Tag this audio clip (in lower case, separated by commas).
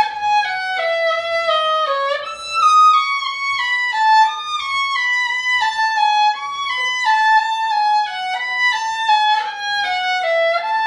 violin, music, musical instrument